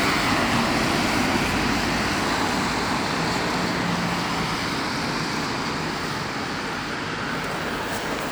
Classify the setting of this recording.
street